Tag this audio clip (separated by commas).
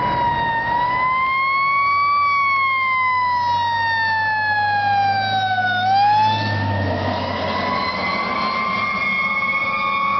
revving, Vehicle